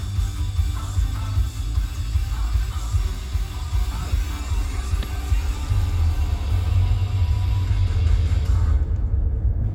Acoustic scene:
car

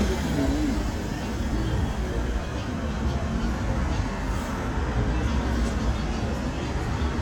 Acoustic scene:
street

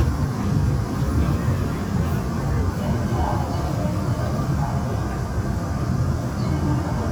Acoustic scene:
subway train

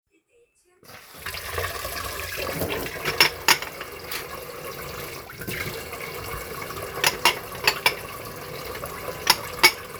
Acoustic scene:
kitchen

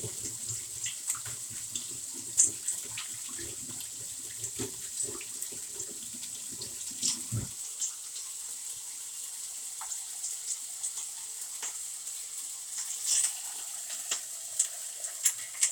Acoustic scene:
kitchen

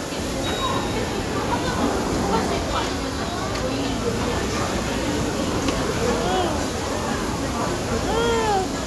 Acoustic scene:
restaurant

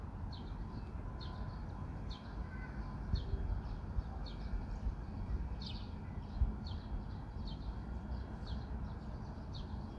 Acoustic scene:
park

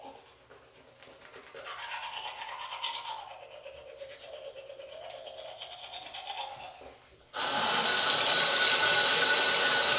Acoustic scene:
restroom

